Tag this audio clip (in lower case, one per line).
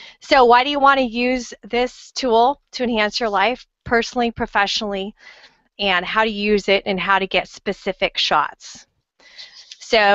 speech